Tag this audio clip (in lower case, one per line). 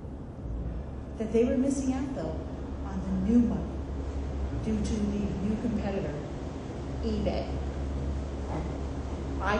speech
female speech